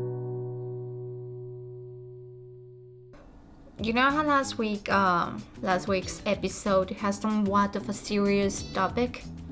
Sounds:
music, speech

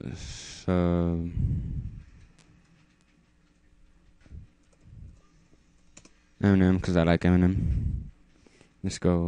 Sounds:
speech, inside a small room

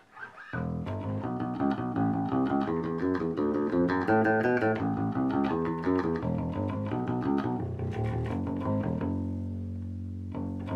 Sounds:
music, bass guitar

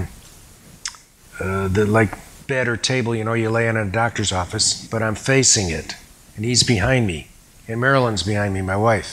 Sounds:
speech, inside a small room

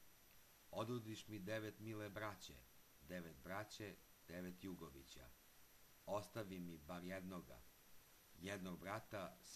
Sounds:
speech

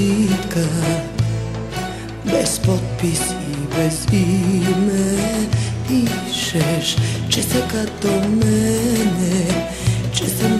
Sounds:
soundtrack music, music

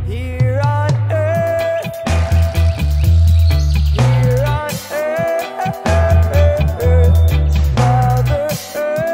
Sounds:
music, echo

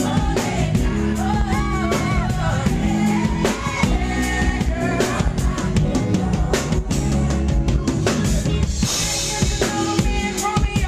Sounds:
music, soul music

